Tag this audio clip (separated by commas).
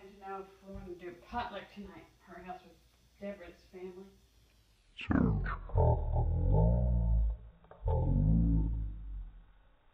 Speech